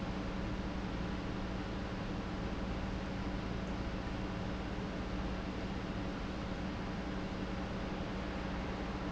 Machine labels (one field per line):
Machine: pump